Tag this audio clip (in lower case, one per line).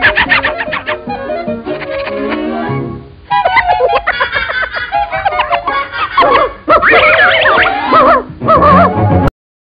music